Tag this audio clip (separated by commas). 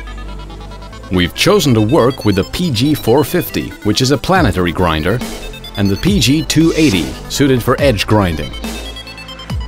Music, Speech